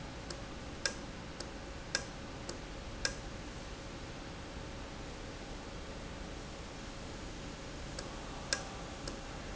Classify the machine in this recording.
valve